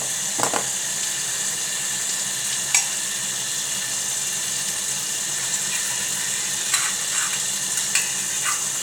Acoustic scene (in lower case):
kitchen